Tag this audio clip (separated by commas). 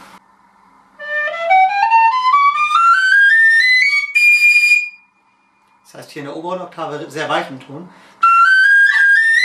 Music, Speech